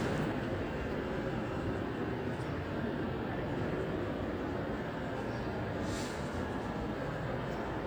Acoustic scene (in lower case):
street